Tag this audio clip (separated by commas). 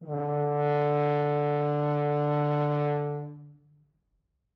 Music, Musical instrument, Brass instrument